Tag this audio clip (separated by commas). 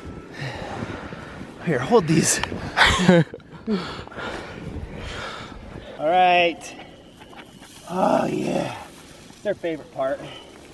outside, rural or natural, Speech